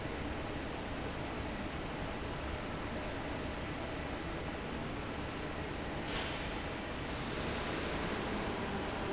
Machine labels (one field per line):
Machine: fan